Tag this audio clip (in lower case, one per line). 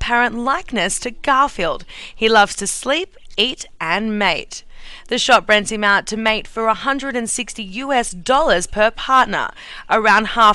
speech